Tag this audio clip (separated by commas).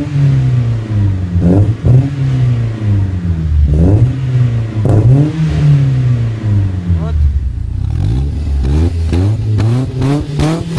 Speech